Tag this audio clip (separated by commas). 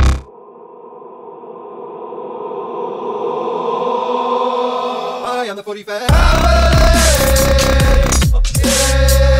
Electronic music, Dubstep, Music